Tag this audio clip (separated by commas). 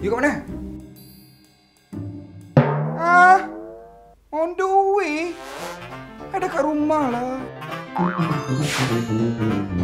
Snare drum